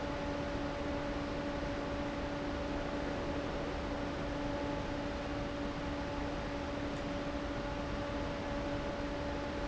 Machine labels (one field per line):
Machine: fan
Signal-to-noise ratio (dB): -6 dB